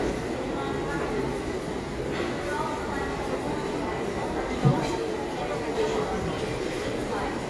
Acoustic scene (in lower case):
subway station